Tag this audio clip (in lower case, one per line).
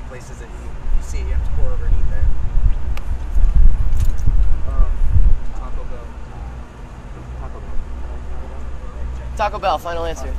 speech